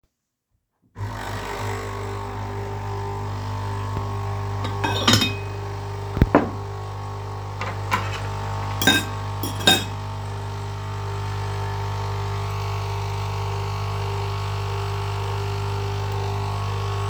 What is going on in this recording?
At the same time the coffee machine is running i grapped a plate, then put it back on the table. After that i picked up cutlery and put it on the plate.